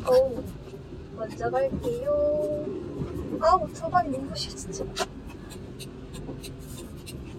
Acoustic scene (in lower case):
car